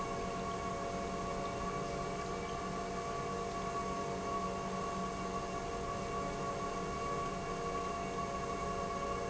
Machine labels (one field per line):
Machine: pump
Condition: normal